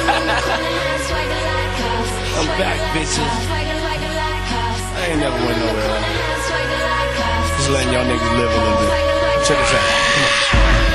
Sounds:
speech
music

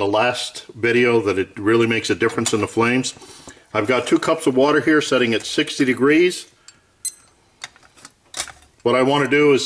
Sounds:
speech

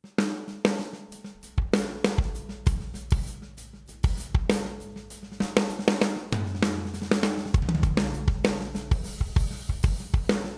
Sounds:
music
percussion

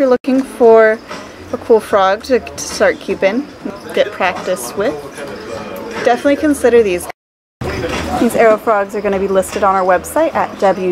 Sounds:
speech

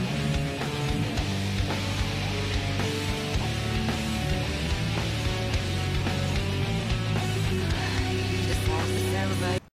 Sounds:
speech
music

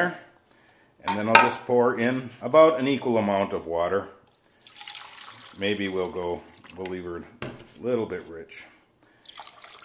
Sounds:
trickle
speech

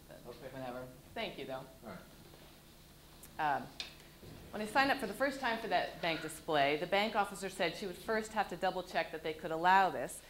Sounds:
speech

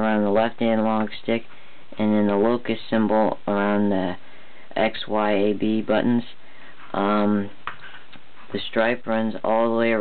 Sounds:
speech

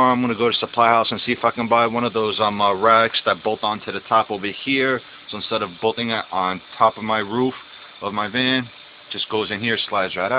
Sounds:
speech

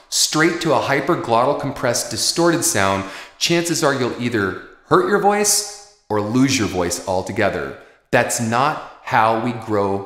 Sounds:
speech

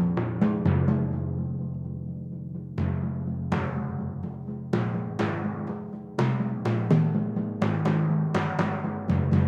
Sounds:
drum
music
timpani
percussion
musical instrument

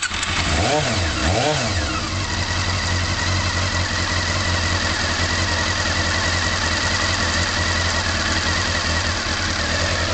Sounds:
idling
engine

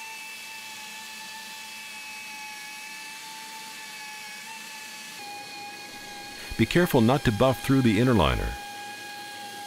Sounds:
speech

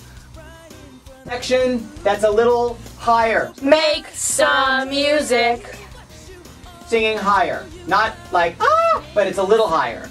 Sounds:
rhythm and blues
music
speech

